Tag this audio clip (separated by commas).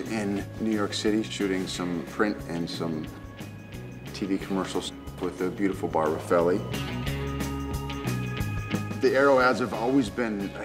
Speech, Music